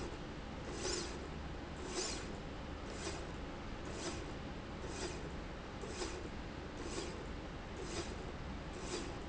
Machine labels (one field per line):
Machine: slide rail